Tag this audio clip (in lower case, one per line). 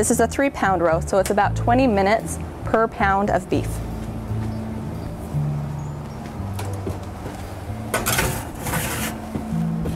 music
speech
inside a small room